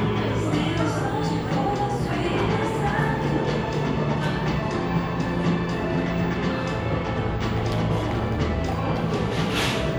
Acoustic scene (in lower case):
cafe